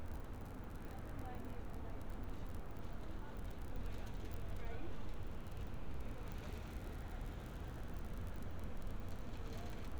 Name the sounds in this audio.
person or small group talking